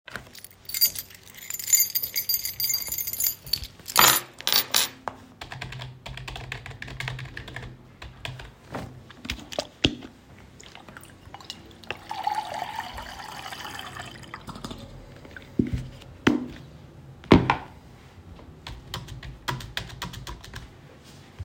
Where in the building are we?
living room